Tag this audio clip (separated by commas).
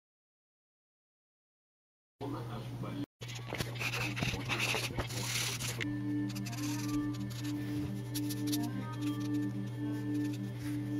Speech, Music